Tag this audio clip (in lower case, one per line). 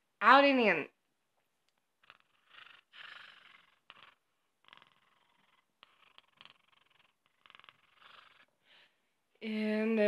speech